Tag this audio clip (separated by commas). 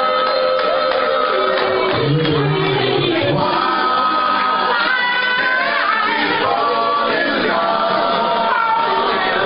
Music, Speech, Male singing, Choir